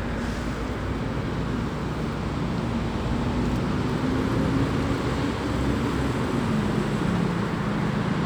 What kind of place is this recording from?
street